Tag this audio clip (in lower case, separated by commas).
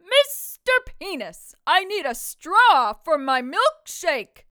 shout, speech, yell, female speech, human voice